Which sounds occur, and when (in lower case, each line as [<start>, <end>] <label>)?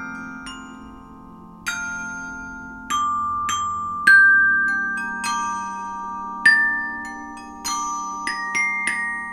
[0.04, 1.11] music
[1.58, 9.32] music